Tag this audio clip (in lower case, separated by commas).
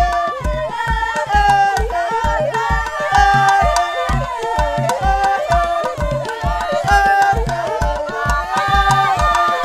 yodelling